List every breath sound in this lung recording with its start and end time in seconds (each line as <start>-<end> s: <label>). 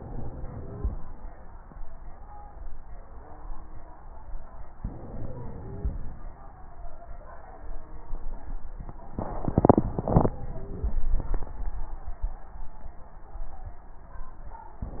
0.00-0.91 s: inhalation
0.53-0.91 s: wheeze
4.81-6.02 s: inhalation
5.53-6.02 s: wheeze
9.25-10.96 s: inhalation
10.57-10.96 s: wheeze